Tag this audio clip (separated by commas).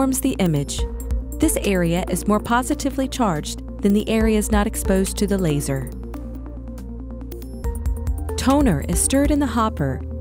Music, Speech